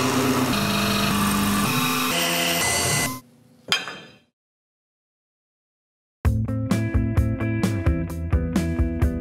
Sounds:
electric grinder grinding

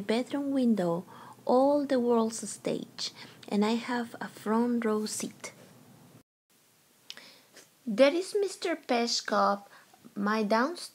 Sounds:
speech

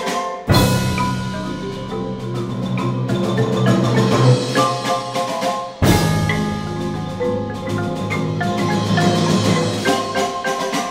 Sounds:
marimba
glockenspiel
mallet percussion

